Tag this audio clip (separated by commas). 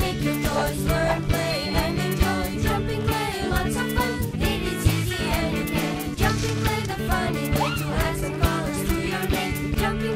outside, rural or natural, Music